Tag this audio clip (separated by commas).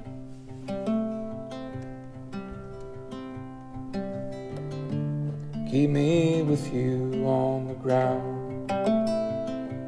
Ukulele, Music, Singing